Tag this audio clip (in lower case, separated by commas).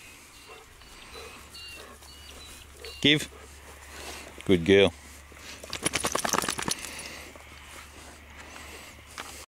speech, animal